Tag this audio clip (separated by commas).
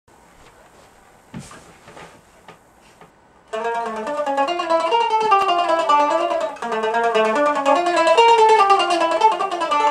Mandolin, Music, Musical instrument, Plucked string instrument, Guitar